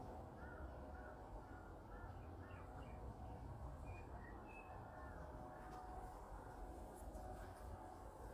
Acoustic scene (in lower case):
park